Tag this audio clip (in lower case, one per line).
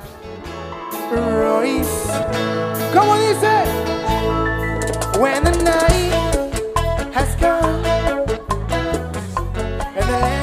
music
singing